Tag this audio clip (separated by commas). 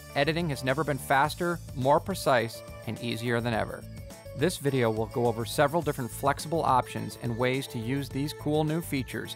Speech, Music